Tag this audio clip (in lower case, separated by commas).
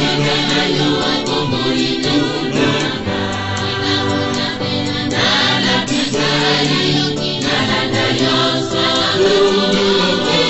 music, chant